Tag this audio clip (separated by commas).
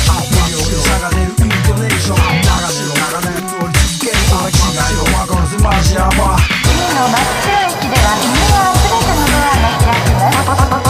Music